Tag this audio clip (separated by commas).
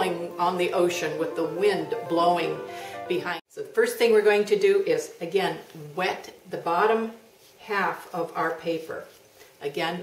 Speech, Music